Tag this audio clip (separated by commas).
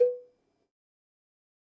Bell, Cowbell